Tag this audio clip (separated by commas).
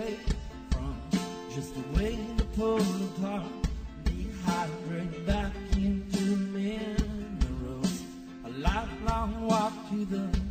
Music